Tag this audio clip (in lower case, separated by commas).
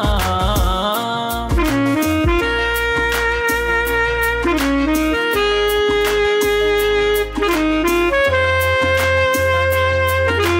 saxophone, music, singing